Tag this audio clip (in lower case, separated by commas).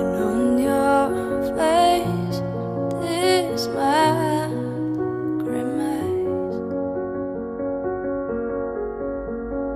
music